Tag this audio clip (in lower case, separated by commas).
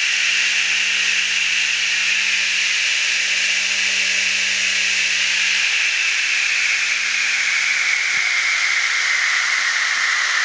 power tool, inside a small room